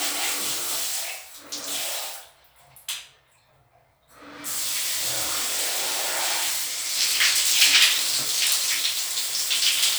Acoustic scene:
restroom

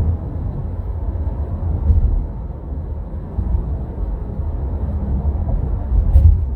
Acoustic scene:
car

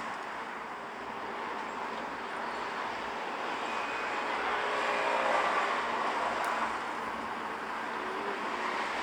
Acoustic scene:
street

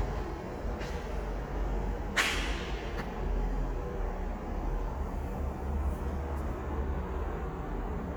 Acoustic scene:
subway station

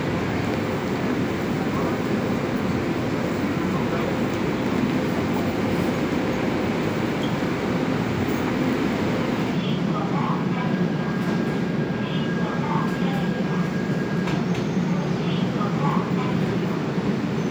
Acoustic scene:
subway station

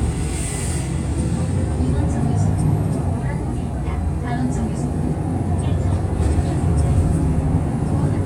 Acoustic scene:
bus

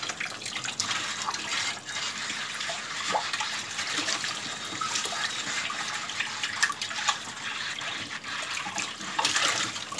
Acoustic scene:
kitchen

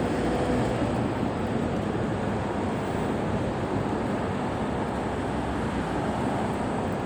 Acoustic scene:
street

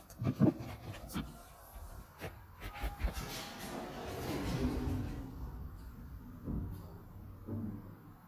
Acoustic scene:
elevator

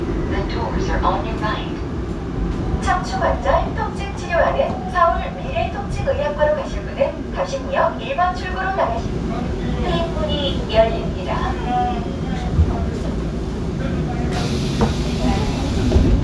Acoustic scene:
subway train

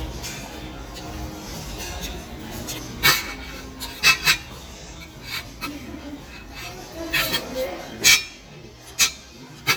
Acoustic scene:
restaurant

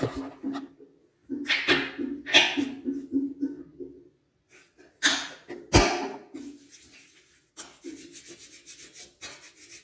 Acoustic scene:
restroom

